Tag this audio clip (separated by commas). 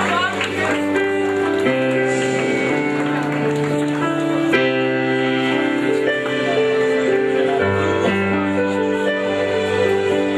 Speech, Music